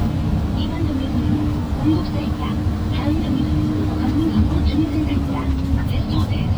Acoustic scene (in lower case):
bus